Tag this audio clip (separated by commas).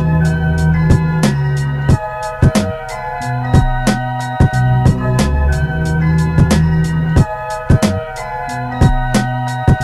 Music, Classical music